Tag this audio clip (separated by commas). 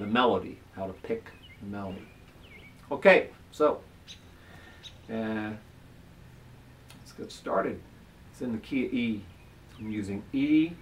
Speech